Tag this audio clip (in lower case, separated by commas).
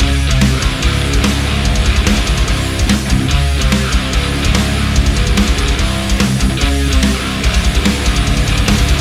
music, exciting music, disco